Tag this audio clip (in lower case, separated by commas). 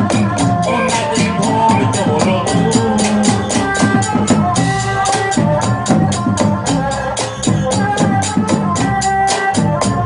music, folk music